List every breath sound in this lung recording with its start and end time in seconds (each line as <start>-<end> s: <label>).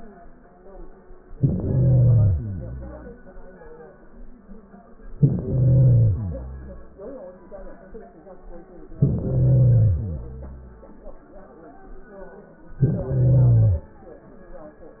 1.35-2.40 s: inhalation
2.31-3.24 s: exhalation
5.08-6.15 s: inhalation
6.12-6.93 s: exhalation
8.99-9.97 s: inhalation
9.95-11.02 s: exhalation
12.80-13.78 s: inhalation